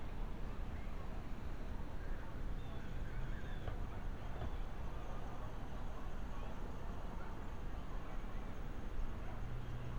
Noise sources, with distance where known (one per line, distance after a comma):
background noise